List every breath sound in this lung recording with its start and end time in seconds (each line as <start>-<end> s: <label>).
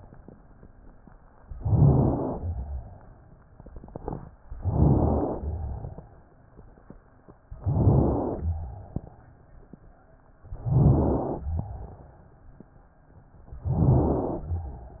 1.53-2.42 s: inhalation
2.42-3.48 s: exhalation
4.54-5.43 s: inhalation
5.43-6.35 s: exhalation
5.44-6.34 s: crackles
7.59-8.41 s: inhalation
8.40-9.45 s: crackles
8.41-9.45 s: exhalation
10.48-11.48 s: inhalation
11.46-12.51 s: crackles
11.48-12.49 s: exhalation
13.62-14.48 s: inhalation